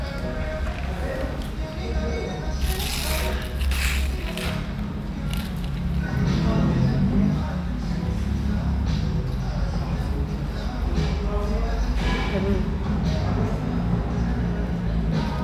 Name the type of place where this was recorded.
restaurant